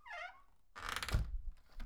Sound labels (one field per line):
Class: window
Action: closing